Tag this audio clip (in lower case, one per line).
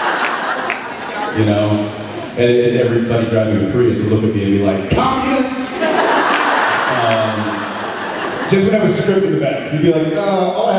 speech